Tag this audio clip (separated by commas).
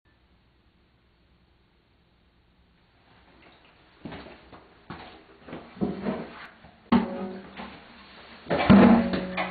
Music, Guitar, Musical instrument, Acoustic guitar, Plucked string instrument